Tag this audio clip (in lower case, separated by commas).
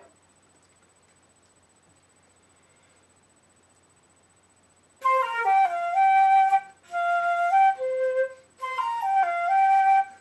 music, flute